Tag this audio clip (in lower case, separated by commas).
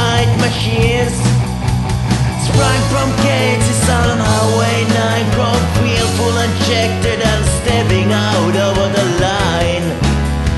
music